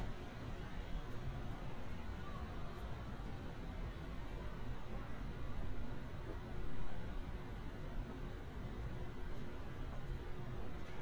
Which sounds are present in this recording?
background noise